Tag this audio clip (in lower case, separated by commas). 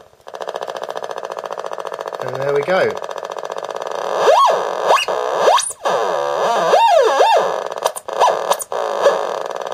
speech